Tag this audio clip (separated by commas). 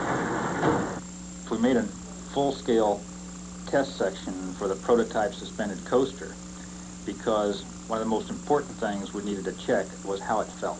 Speech